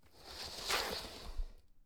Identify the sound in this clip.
wooden furniture moving